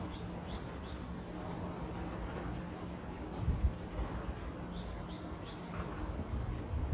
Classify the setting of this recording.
residential area